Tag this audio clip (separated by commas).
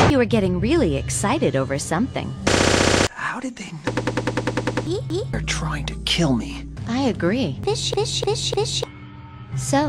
inside a small room, Music, Speech